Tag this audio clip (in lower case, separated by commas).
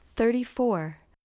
speech, woman speaking, human voice